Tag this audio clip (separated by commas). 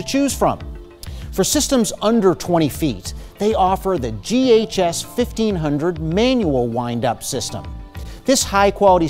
Speech, Music